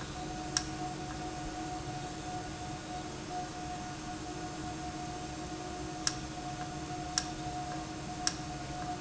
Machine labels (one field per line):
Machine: valve